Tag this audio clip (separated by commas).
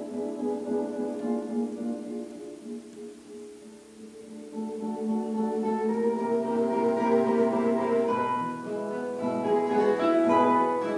Music, Musical instrument, Strum, Guitar, Plucked string instrument